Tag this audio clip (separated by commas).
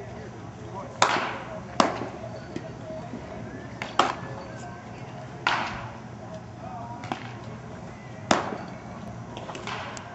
Speech